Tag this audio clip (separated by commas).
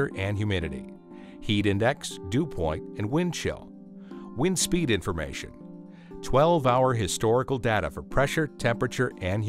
Speech, Music